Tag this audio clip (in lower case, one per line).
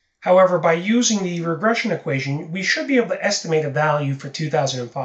speech